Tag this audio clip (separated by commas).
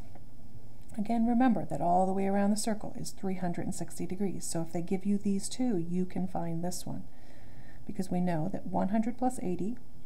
Speech